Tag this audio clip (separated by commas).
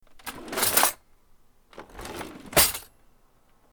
silverware, home sounds